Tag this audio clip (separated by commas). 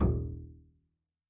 Music, Bowed string instrument, Musical instrument